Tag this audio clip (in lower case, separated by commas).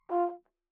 musical instrument, music, brass instrument